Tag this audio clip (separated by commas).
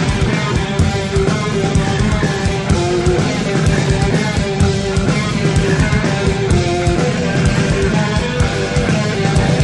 Rock music, Music